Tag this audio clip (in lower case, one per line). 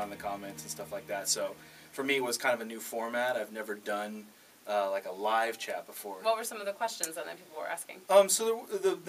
speech